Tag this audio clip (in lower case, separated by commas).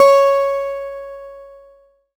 music, guitar, acoustic guitar, plucked string instrument, musical instrument